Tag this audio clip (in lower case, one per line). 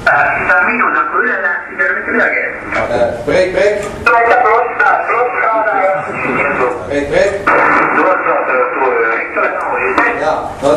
speech
radio